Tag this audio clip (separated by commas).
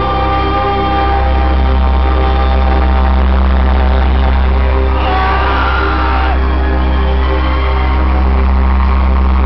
Music